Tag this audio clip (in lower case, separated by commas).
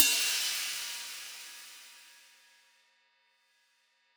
musical instrument, hi-hat, percussion, cymbal, music